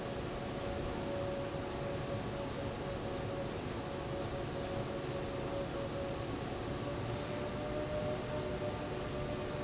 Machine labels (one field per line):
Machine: fan